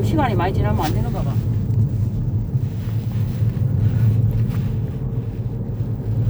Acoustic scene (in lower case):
car